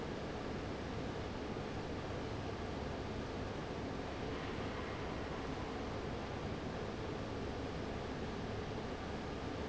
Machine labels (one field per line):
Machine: fan